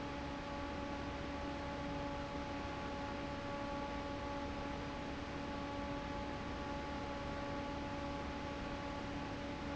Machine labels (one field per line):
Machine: fan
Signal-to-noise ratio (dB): 0 dB